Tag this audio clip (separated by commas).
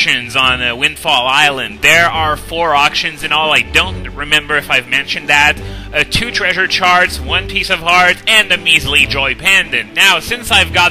Music, Speech